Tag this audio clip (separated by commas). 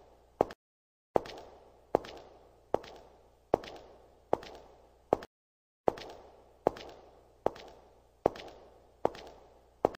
footsteps